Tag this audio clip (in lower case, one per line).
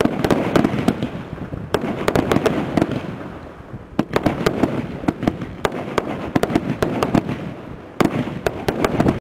fireworks banging
fireworks